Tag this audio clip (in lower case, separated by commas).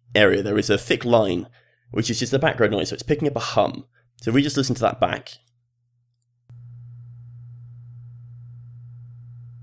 speech